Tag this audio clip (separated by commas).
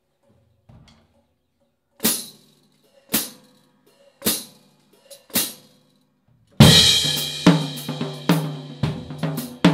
Drum, Drum kit, Music, Musical instrument, Snare drum, inside a small room